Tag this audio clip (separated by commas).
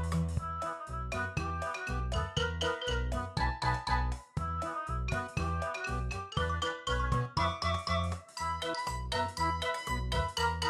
Music